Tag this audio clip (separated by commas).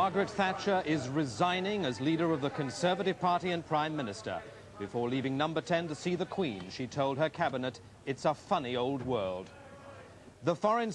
Speech